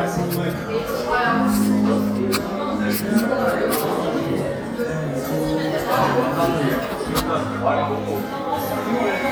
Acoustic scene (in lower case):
crowded indoor space